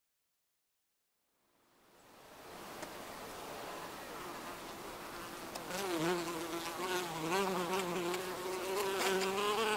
Bees fly nearby